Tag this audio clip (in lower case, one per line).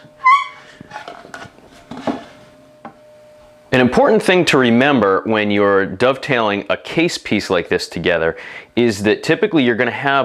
speech
wood